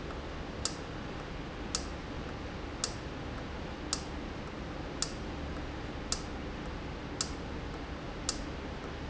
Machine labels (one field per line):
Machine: valve